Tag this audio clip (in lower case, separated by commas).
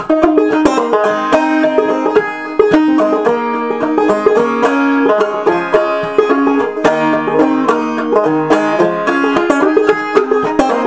music